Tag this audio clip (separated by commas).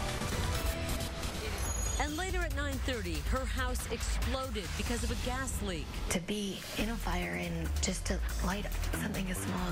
Speech, Music